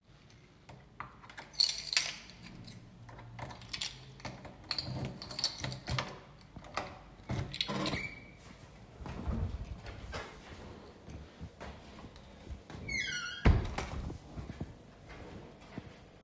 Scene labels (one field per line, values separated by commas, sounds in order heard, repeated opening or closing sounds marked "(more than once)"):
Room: hallway, bedroom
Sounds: keys, door (more than once), footsteps